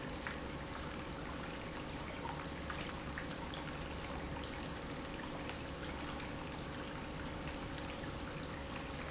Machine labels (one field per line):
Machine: pump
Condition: normal